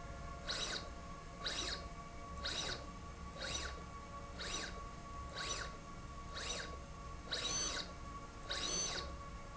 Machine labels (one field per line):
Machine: slide rail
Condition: abnormal